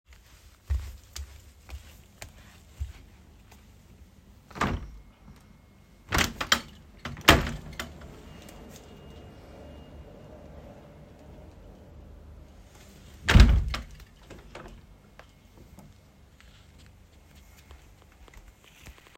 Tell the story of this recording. I walked across the living room toward the window. I unlocked the latch and slid the window open to let in some air. Then I stepped back and returned to what I was doing.